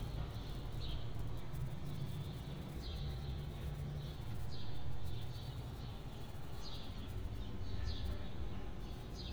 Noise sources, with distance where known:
background noise

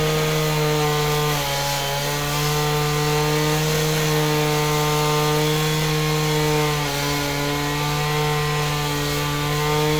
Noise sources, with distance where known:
unidentified powered saw, near

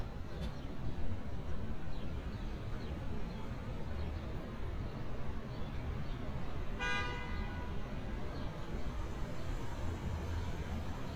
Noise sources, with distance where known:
car horn, near

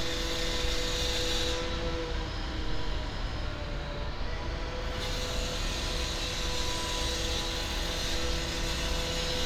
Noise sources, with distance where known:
large rotating saw

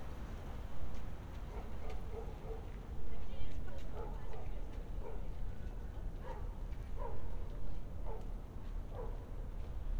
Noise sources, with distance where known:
person or small group talking, far
dog barking or whining, far

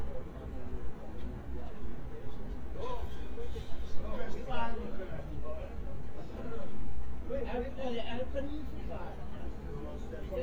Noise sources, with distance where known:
engine of unclear size, far
person or small group talking

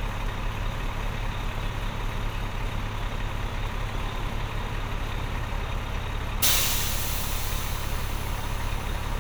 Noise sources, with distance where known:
large-sounding engine, near

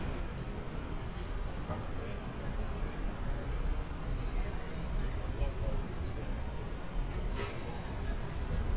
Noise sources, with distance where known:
person or small group talking

